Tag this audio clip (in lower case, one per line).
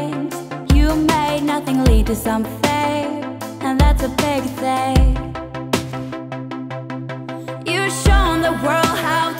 music